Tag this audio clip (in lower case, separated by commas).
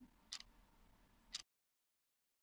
mechanisms, clock